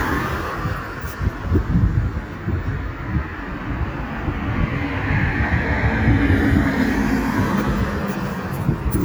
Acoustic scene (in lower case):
street